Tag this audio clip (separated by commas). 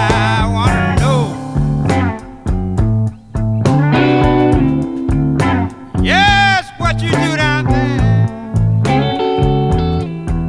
Music, Bass guitar